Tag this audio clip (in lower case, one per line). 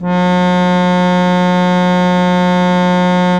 keyboard (musical)
musical instrument
organ
music